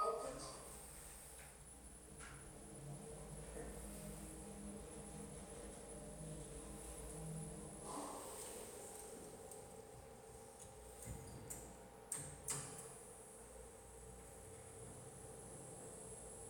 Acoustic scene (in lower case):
elevator